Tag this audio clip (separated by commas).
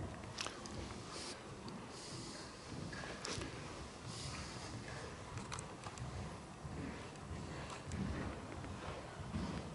inside a large room or hall